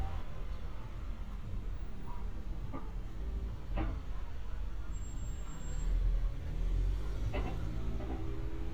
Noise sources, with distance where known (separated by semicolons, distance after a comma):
engine of unclear size, near